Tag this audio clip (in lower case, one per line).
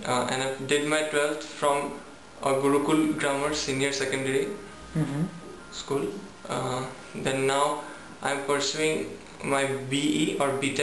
speech
male speech